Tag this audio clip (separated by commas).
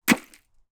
Tools, Hammer